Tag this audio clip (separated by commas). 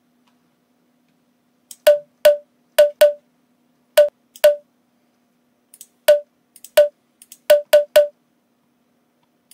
Clicking